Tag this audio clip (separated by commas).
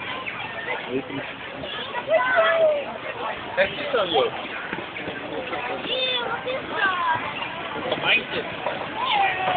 Speech